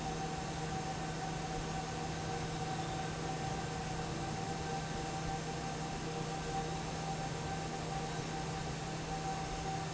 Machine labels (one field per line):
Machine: fan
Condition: normal